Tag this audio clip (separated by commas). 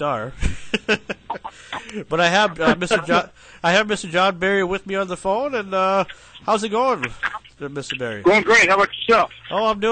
Speech